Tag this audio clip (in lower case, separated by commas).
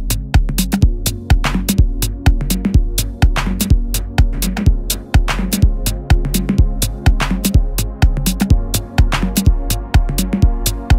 music